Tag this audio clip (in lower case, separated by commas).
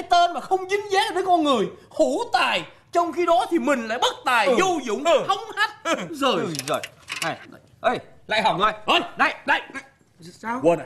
speech